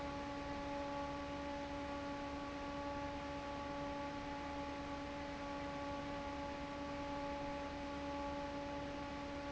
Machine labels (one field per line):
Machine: fan